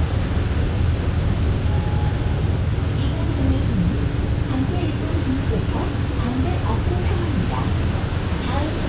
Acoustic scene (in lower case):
bus